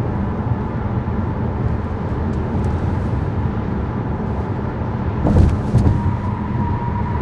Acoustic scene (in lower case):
car